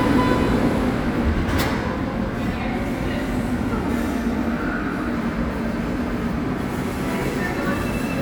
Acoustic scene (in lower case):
subway station